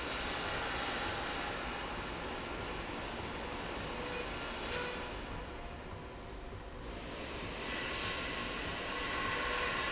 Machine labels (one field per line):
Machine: slide rail